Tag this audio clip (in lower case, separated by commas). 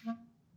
musical instrument, music, wind instrument